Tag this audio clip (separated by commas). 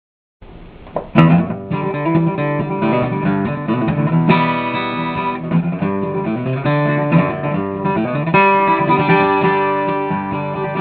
Pizzicato